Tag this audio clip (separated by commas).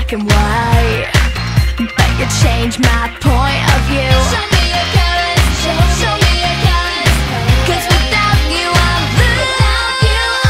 Music